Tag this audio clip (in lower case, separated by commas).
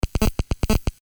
telephone, alarm